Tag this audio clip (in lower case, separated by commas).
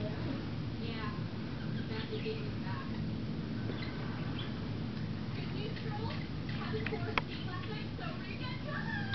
speech, animal, inside a small room